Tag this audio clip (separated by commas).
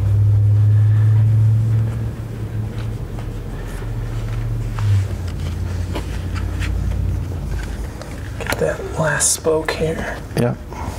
Speech, Car, Vehicle